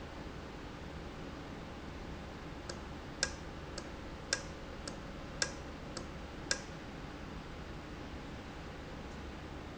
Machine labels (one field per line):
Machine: valve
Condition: normal